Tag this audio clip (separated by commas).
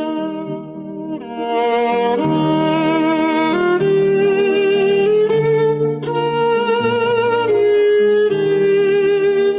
Violin, Musical instrument, Music